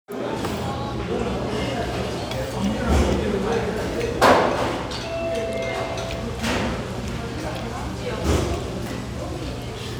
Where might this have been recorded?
in a restaurant